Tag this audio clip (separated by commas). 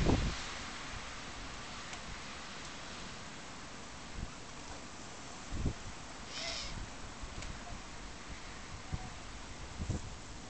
Bird